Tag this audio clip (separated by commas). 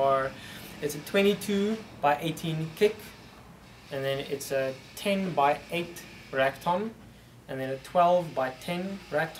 Speech